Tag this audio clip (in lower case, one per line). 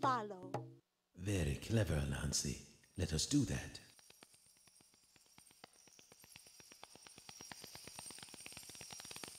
speech